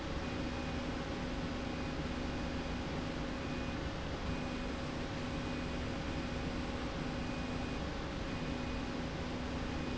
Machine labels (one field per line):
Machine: slide rail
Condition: normal